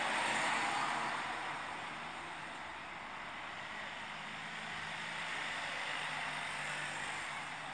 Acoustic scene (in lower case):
street